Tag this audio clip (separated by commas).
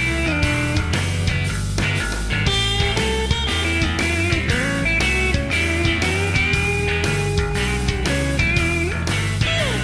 Music